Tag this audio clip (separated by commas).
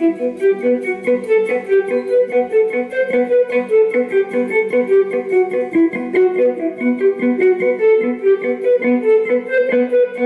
Musical instrument, Music, Violin